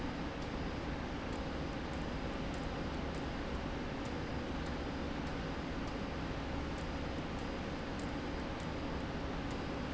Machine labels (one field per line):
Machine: slide rail